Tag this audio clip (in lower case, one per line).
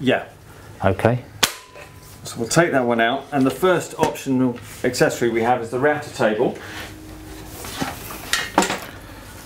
wood
speech